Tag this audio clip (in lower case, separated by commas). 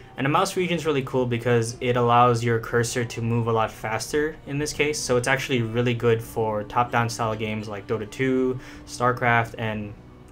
speech, music